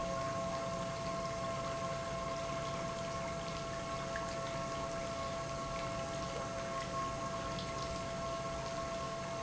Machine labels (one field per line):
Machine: pump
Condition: normal